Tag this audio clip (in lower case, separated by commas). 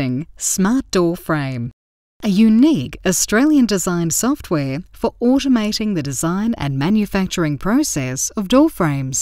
speech